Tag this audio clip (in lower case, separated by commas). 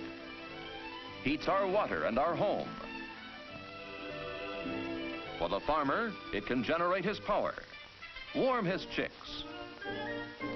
speech